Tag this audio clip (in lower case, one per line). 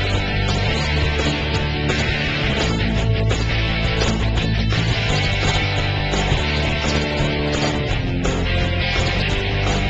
music